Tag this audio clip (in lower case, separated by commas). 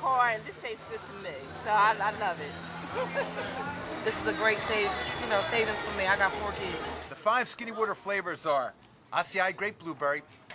speech, music